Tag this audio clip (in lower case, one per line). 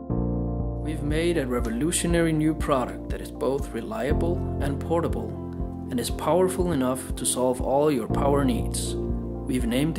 speech
music